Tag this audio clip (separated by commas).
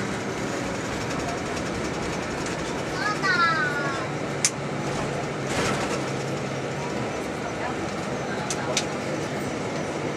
Speech